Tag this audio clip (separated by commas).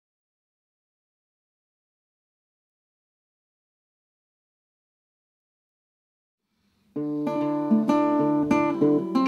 Music, Plucked string instrument, inside a small room, Musical instrument, playing acoustic guitar, Silence, Guitar, Acoustic guitar